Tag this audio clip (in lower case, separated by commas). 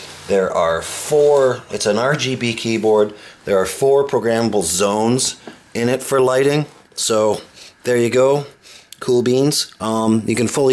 speech